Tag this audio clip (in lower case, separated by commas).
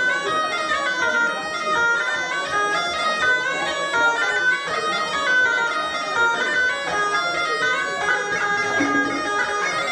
playing bagpipes